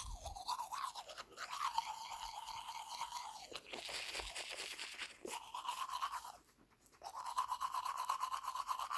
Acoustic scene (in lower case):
restroom